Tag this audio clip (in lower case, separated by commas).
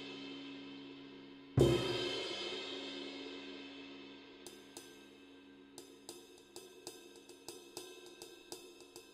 playing cymbal